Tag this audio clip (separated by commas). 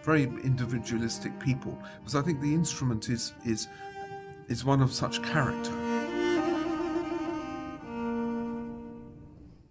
Speech, Music